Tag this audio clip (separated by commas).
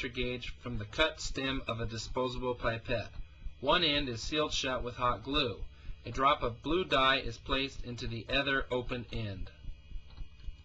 Speech